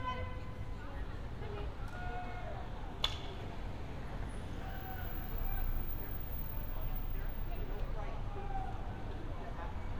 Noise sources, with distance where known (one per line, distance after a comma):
car horn, near
person or small group talking, near
person or small group shouting, far